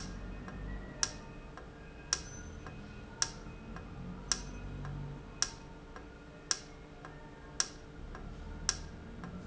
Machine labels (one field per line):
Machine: valve